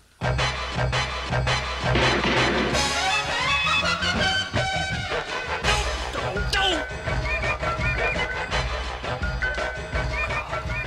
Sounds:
television
music

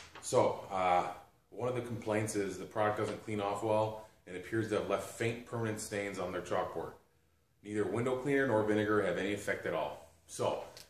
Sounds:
speech

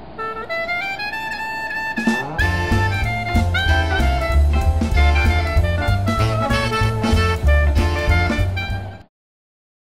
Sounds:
music

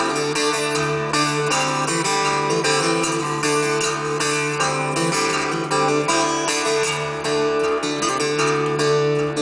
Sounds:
music

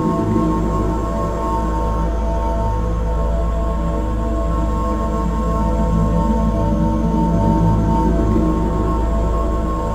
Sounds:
music
ambient music

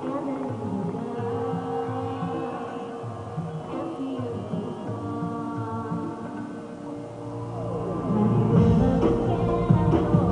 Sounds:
music

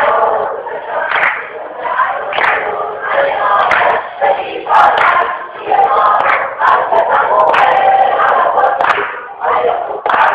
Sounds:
female singing

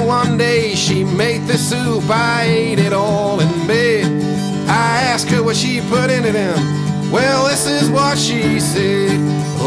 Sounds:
music

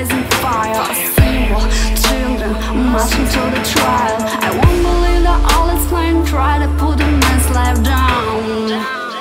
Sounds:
music

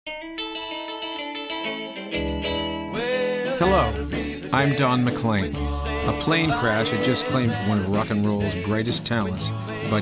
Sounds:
plucked string instrument
music
guitar
speech

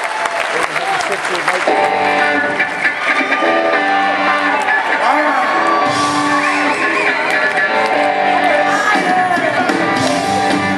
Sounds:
music
speech

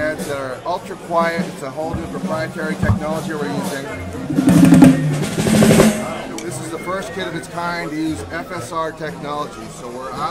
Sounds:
speech
music
percussion

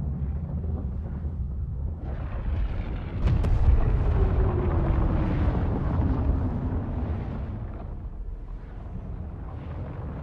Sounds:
volcano explosion

